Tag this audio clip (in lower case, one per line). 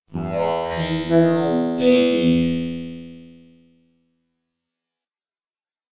human voice
speech
speech synthesizer